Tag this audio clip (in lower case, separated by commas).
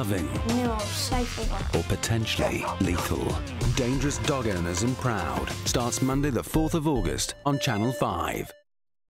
dog, animal, speech, domestic animals, music, bow-wow